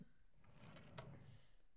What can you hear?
wooden drawer opening